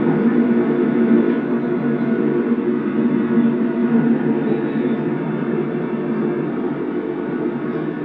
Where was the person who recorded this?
on a subway train